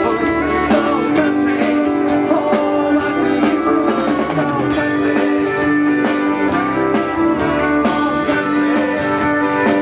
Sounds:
blues, country, music

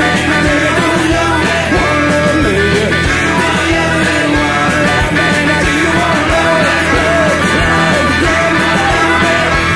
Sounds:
rock music, rock and roll, music

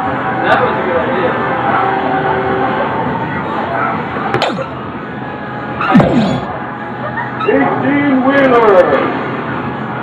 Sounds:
speech

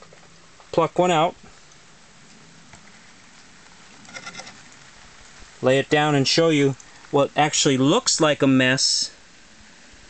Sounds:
outside, urban or man-made, speech

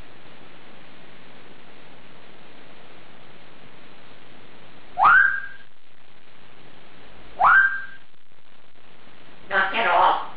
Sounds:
parrot talking

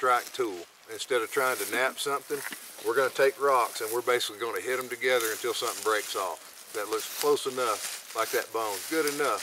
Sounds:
speech

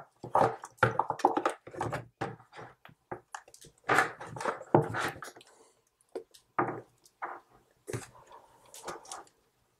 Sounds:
inside a small room

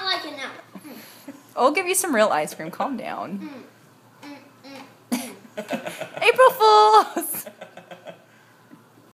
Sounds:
speech, child speech

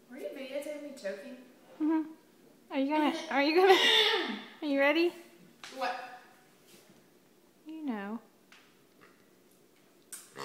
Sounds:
speech

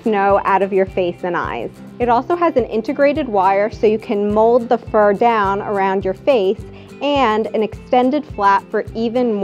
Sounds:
music, speech

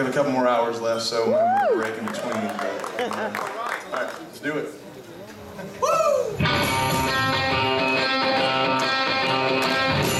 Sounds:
jingle, jingle (music), music, speech

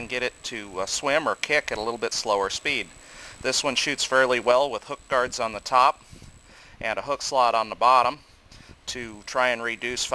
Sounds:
speech

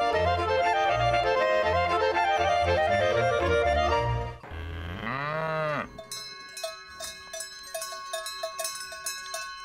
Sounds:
cattle

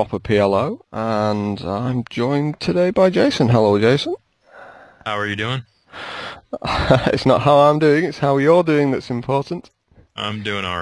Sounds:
speech

